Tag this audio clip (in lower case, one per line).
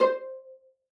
musical instrument
bowed string instrument
music